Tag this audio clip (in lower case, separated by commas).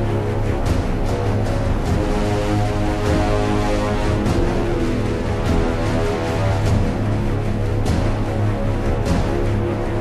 music, angry music